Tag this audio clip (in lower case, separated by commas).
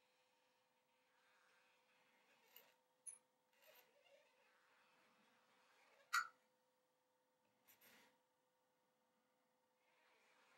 silence